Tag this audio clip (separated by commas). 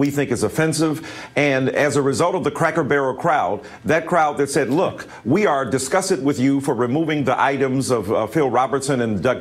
Speech